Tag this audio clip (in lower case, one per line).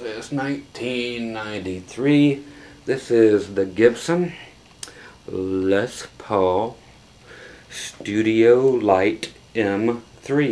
speech